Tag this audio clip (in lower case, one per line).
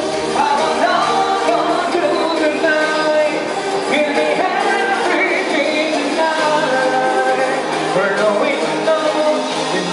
electronica
music